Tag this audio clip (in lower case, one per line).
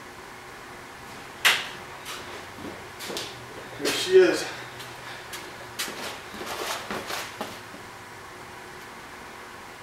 speech